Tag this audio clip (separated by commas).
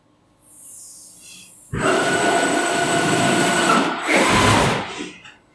Mechanisms